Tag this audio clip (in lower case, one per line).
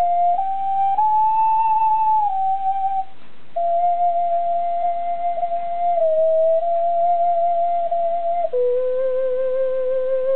flute